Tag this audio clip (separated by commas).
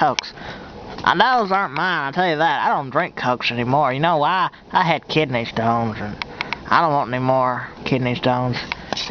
Speech